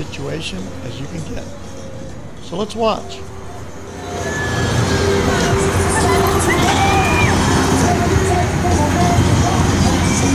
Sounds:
Speech, Music

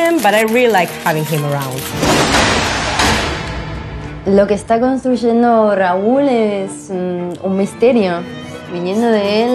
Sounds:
Speech, Music

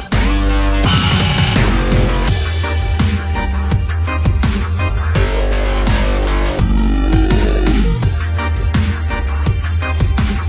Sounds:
Music, Dubstep, Electronic music

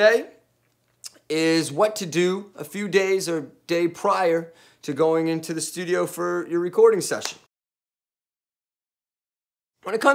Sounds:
Speech

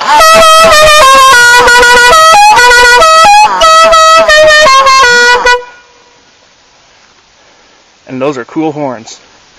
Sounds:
Music, Speech

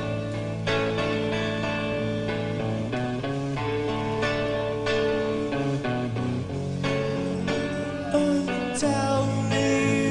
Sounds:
Music

